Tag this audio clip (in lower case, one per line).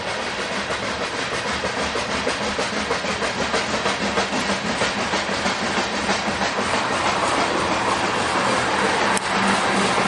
clickety-clack
train
rail transport
train wagon